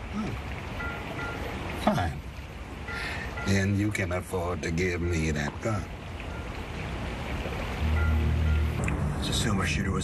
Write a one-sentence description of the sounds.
Water runs and a man speaks